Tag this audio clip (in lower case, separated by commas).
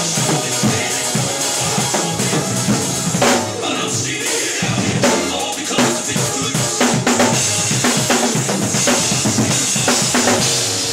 drum kit, bass drum, rimshot, drum, drum roll, percussion, snare drum